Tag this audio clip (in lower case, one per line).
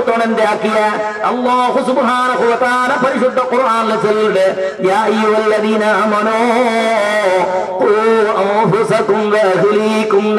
man speaking
speech